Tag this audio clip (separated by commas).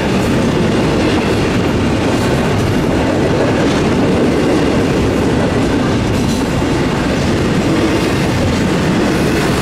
train horning